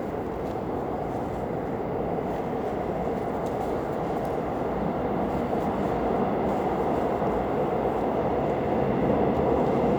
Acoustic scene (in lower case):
subway station